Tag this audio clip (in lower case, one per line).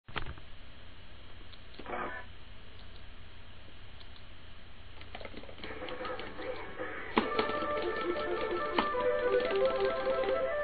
music